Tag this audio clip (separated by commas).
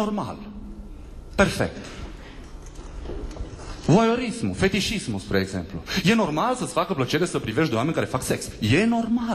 Speech